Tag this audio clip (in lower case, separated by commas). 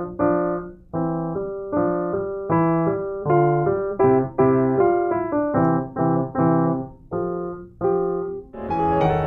classical music, music, piano, musical instrument, keyboard (musical)